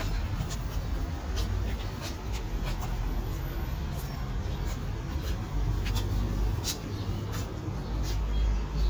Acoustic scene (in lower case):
residential area